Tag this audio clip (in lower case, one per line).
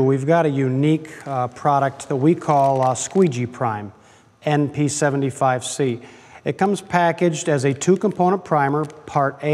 speech